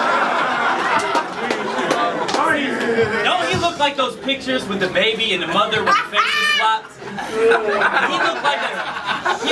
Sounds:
chortle
speech

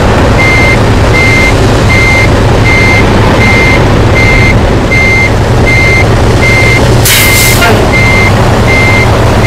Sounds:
reversing beeps
vehicle

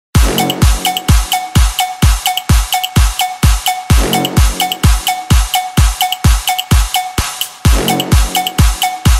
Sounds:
electronic dance music
music

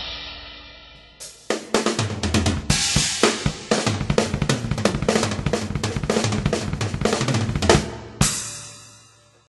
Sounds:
music

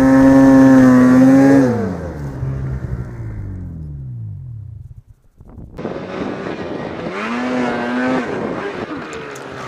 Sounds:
rumble
outside, rural or natural
vehicle

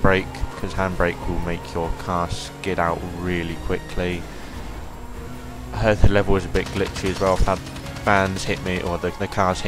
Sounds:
speech
music

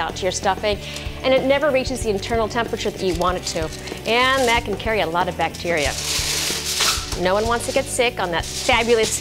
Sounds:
music
speech

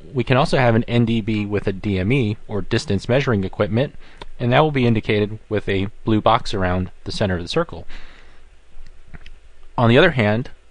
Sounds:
speech

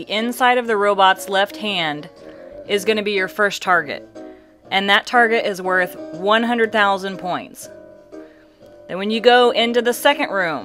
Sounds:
narration

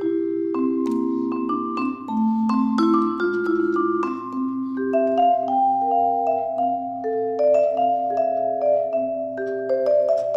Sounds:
music
vibraphone

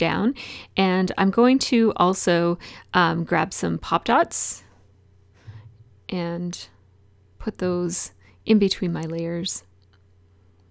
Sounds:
speech

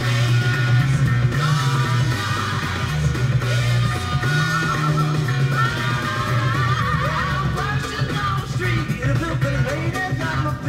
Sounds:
music

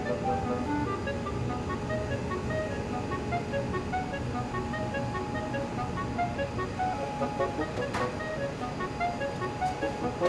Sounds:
music

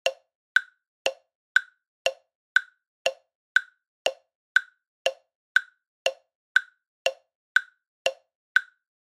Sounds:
tick

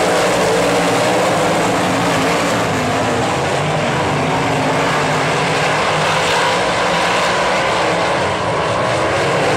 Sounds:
car passing by

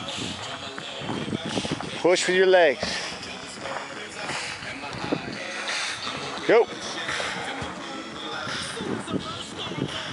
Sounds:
speech
music

